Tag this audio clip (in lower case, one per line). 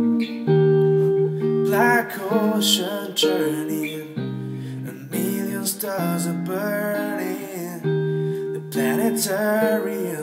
music